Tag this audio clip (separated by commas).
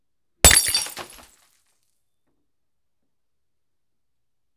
Glass, Shatter